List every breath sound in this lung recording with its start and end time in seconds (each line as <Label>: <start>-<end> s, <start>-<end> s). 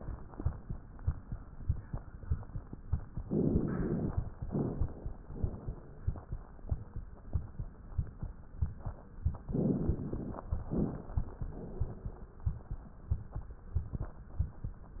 Inhalation: 3.25-4.33 s, 9.49-10.63 s
Exhalation: 4.48-5.31 s, 5.33-6.17 s, 10.70-11.54 s, 11.59-12.43 s